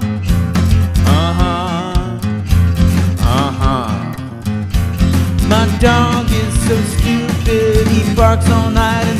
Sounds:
music

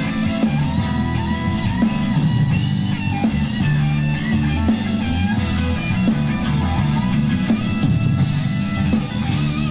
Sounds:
inside a public space, guitar, music

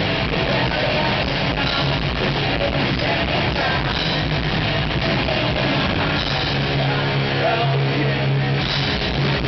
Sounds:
music

